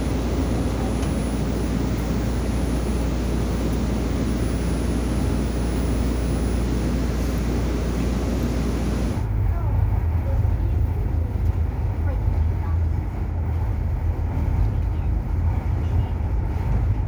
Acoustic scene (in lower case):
subway train